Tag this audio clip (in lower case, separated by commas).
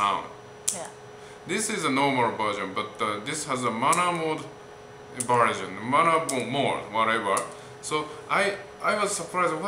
speech